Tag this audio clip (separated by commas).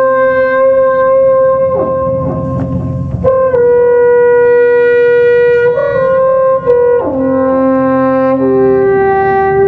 Wind instrument